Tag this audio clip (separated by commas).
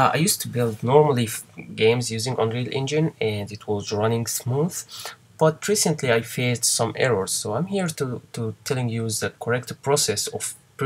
Speech